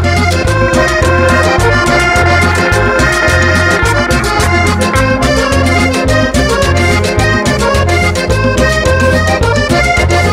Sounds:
Musical instrument, Music, Accordion

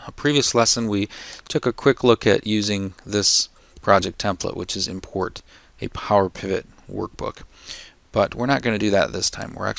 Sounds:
Speech

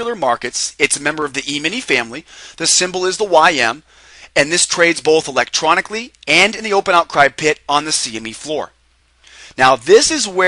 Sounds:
Speech

